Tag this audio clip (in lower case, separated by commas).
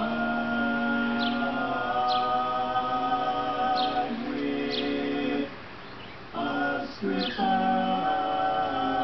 music, bird, coo